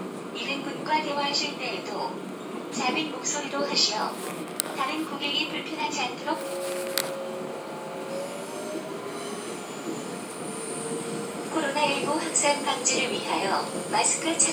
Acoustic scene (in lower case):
subway train